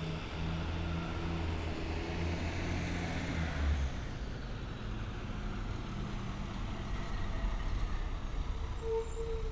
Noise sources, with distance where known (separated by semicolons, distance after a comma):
large-sounding engine, near